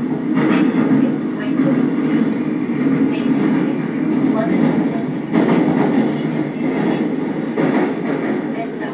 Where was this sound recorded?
on a subway train